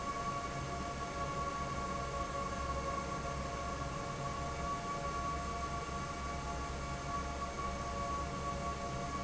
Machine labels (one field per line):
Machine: fan